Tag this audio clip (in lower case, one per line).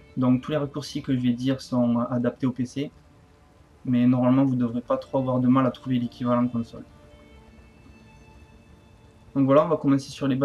speech